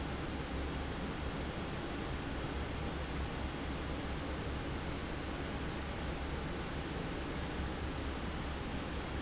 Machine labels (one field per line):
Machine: fan